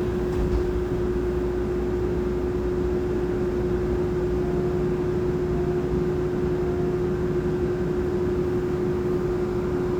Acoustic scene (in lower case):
subway train